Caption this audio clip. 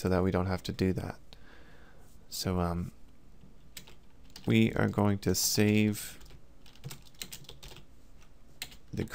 A man speaking alongside typing on a computer keyboard